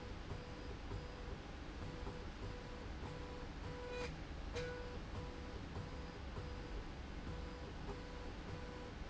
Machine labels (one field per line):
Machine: slide rail